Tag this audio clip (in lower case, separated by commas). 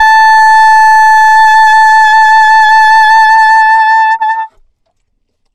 musical instrument, woodwind instrument, music